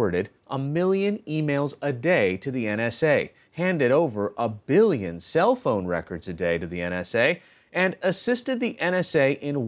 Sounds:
Speech

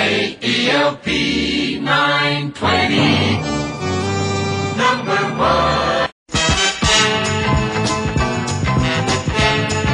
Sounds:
Music

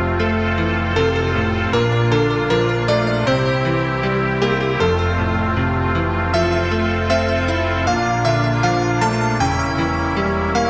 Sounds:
New-age music, Music

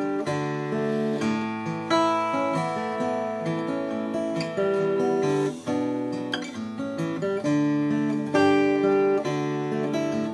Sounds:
Musical instrument, Music, Acoustic guitar, Guitar

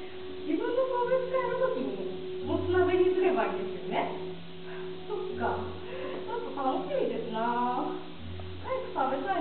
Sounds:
woman speaking, Speech, monologue

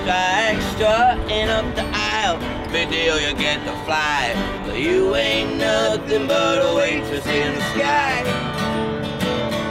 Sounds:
Music

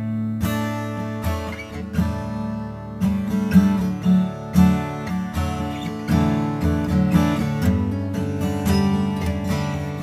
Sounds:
Music

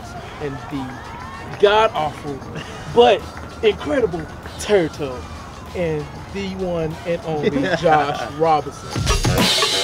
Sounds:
Speech, Music

